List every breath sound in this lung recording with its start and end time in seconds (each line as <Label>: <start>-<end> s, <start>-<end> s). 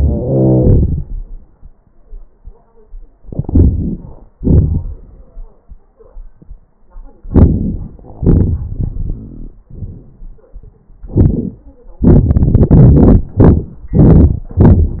Inhalation: 3.23-4.34 s, 7.28-7.98 s
Exhalation: 7.97-9.62 s
Crackles: 0.00-1.07 s, 3.23-4.34 s, 7.97-9.62 s